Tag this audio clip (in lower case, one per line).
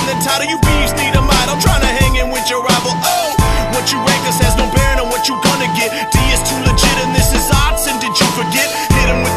music